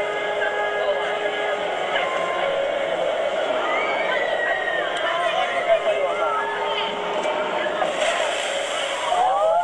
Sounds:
speech

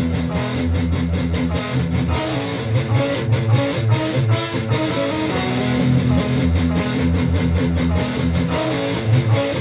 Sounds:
strum, music, playing electric guitar, electric guitar, plucked string instrument, musical instrument, guitar

